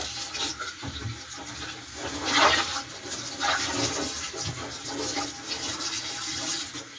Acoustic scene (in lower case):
kitchen